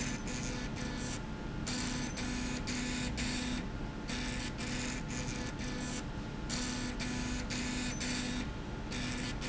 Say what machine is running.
slide rail